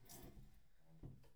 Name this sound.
wooden furniture moving